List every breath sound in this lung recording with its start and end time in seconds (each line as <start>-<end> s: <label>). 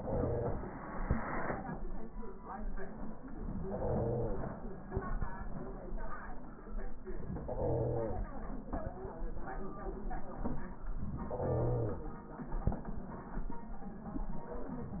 3.58-4.56 s: inhalation
7.26-8.24 s: inhalation
11.17-12.15 s: inhalation